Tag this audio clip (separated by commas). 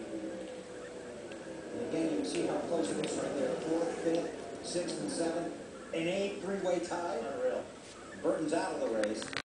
Speech